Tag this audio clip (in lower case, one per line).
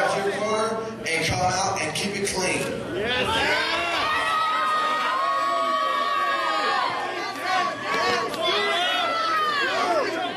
speech